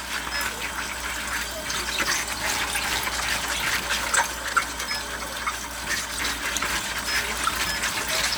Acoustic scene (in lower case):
kitchen